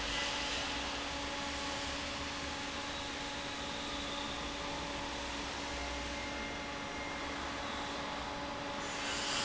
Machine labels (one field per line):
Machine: fan